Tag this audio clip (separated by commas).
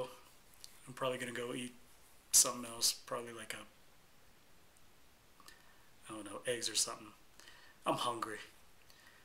inside a small room, Speech